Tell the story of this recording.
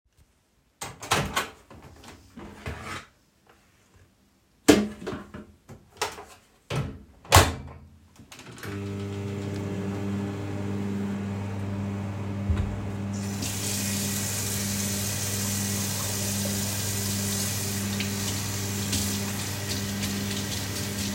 I opened the microwave and put a plastic dish inside. Then I closed the microwave and started it. Follwing that I turned on the sink and started washing my hands.